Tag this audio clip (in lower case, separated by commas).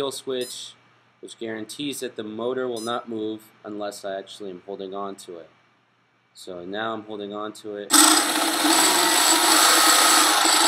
speech, inside a small room